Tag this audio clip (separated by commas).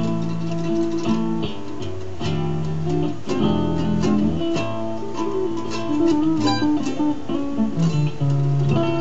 Ukulele, Music, Plucked string instrument, Musical instrument, Guitar